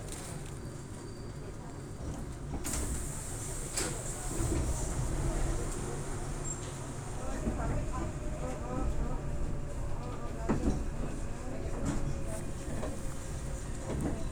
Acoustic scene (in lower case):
subway train